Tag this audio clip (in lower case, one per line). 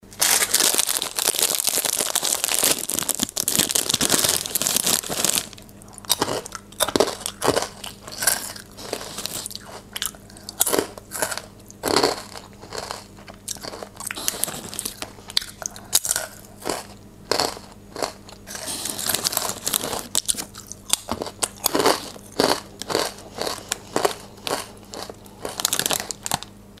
mastication